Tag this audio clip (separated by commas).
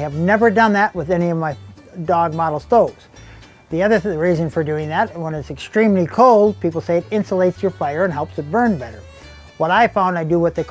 Speech, Music